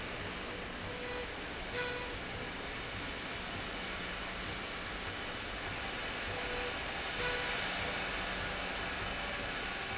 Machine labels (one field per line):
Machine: slide rail